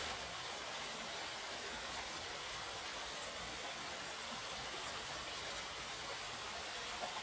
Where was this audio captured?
in a park